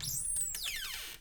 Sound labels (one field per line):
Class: cupboard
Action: opening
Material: wooden